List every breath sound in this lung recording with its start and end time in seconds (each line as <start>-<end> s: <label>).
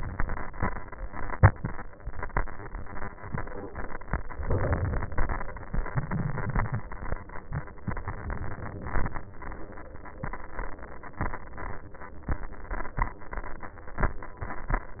4.44-5.71 s: inhalation
5.74-7.00 s: exhalation